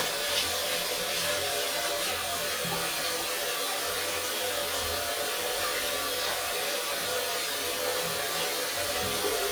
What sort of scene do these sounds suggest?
restroom